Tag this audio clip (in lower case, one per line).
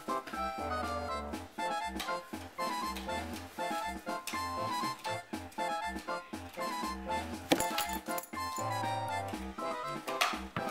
music